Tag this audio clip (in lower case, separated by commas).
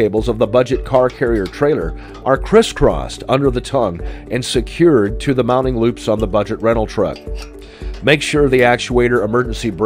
music, speech